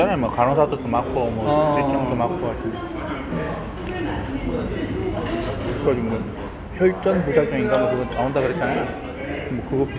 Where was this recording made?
in a restaurant